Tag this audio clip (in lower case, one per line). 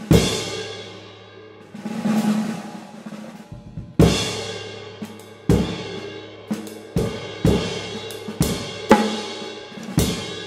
playing cymbal